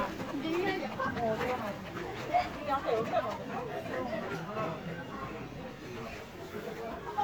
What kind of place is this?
park